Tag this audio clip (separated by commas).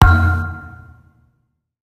Thump